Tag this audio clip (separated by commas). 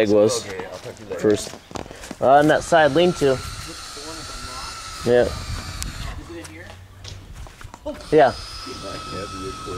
Speech